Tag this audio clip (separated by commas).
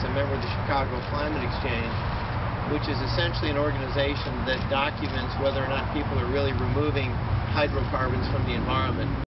Vehicle, Speech